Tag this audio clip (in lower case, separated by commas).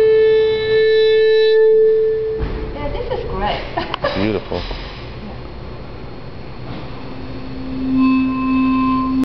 speech, music